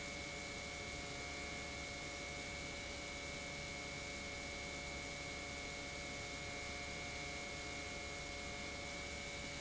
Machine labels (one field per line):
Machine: pump